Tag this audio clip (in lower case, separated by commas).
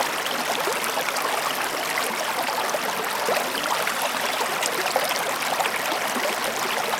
stream, liquid, water